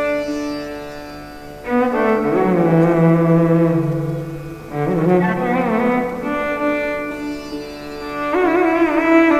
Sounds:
percussion, musical instrument, music, bowed string instrument, sitar, violin

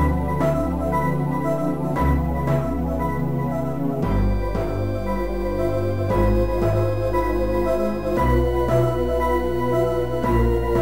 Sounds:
video game music, music

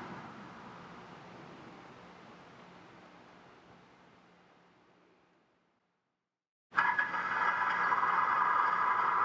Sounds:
rattle

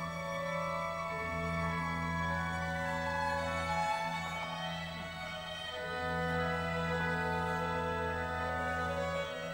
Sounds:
musical instrument, music, violin

